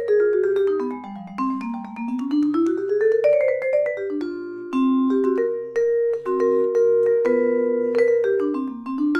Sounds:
Vibraphone, playing vibraphone, Music

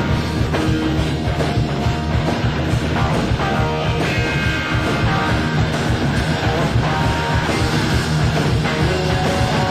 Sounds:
Music

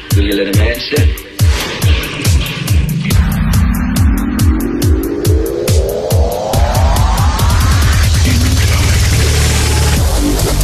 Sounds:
Dubstep, Music, Electronic music, Speech

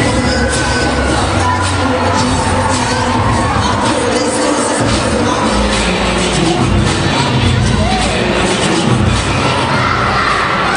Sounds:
Cheering, Music

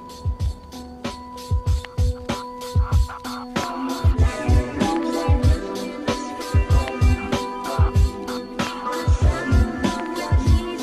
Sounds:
Music, Jingle (music)

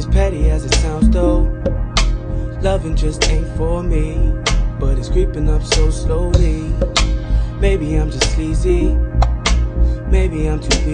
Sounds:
Rhythm and blues

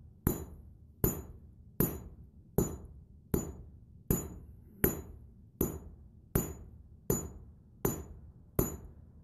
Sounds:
Hammer

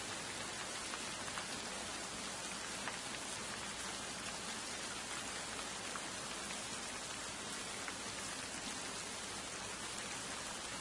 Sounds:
Rain, Raindrop, Rain on surface

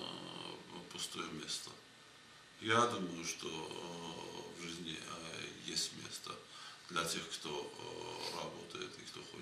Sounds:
inside a small room, Speech

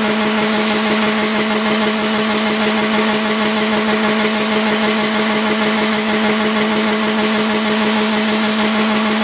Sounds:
Car, Vehicle

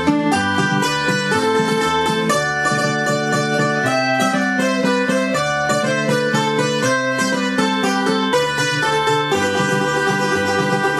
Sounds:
Music

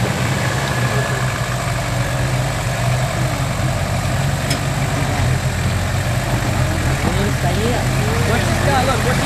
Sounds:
Car, Vehicle, Truck, Speech

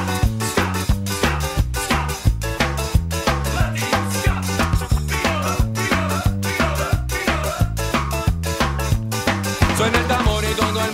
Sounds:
Music

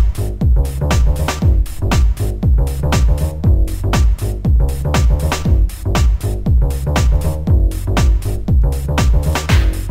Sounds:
Music

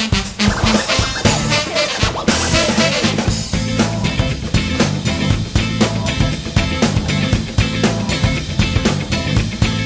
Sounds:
Music

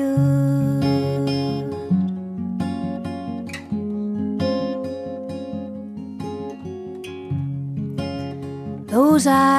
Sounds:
Music

